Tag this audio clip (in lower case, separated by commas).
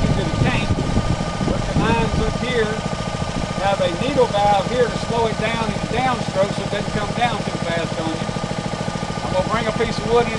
speech